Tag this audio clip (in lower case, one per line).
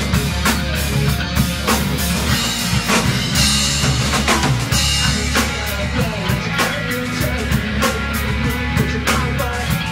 drum kit
percussion
drum
bass drum
rimshot
playing bass drum
snare drum